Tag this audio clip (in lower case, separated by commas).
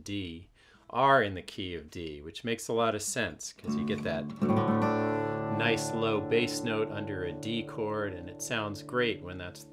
acoustic guitar, guitar, strum, musical instrument, plucked string instrument, music, speech